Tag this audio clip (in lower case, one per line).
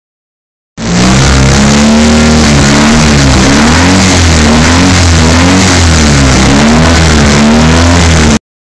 vehicle
revving